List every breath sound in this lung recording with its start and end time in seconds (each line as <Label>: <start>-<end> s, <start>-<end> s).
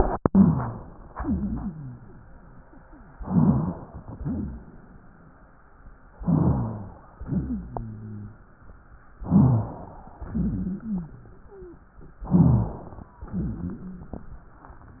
Inhalation: 0.04-1.10 s, 3.21-4.12 s, 6.19-7.06 s, 9.16-10.15 s, 12.29-13.11 s
Exhalation: 1.12-2.18 s, 4.14-5.05 s, 7.25-8.48 s, 10.25-11.39 s, 13.21-14.23 s
Wheeze: 1.12-2.18 s, 4.14-4.67 s, 7.25-8.48 s, 10.25-11.39 s, 11.46-11.82 s, 13.21-14.23 s
Rhonchi: 0.04-1.10 s, 3.21-4.12 s, 6.19-7.06 s, 9.16-9.73 s, 12.29-12.87 s